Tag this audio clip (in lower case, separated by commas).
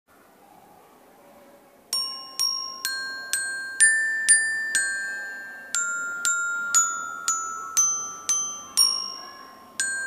music, xylophone